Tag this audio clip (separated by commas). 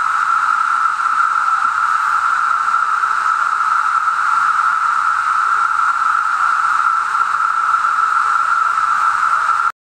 Speech